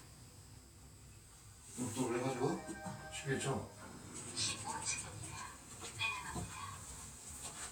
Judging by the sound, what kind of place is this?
elevator